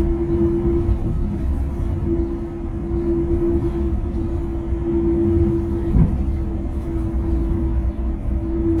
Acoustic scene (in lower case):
bus